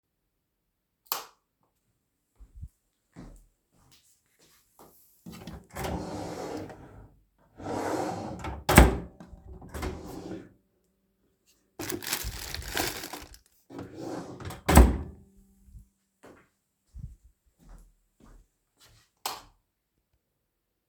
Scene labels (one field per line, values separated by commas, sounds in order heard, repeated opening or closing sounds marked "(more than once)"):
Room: living room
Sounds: light switch, footsteps, wardrobe or drawer (more than once)